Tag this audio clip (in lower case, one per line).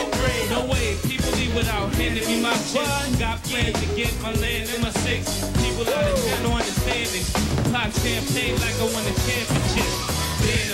music